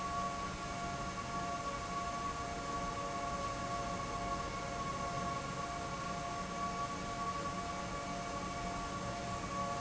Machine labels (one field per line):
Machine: fan